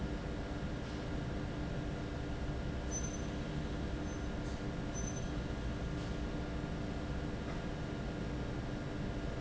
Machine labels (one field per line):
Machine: fan